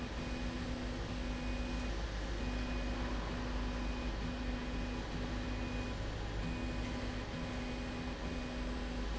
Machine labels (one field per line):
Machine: slide rail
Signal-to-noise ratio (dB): -6 dB